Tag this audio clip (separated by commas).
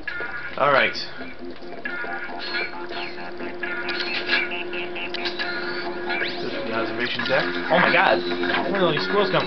Speech, Music